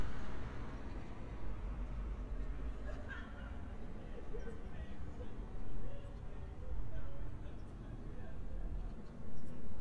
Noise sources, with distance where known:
unidentified human voice, far

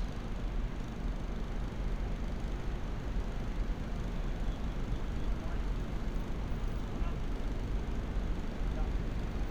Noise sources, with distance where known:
engine of unclear size
person or small group talking, far

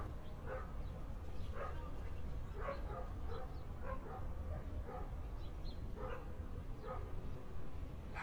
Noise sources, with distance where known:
dog barking or whining, far

